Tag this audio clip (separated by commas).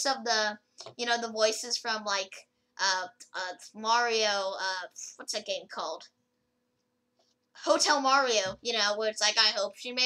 inside a small room, Speech